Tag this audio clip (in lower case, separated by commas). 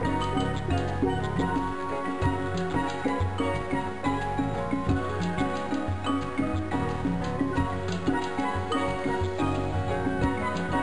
music